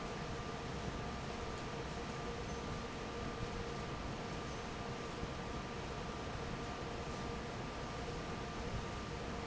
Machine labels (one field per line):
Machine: fan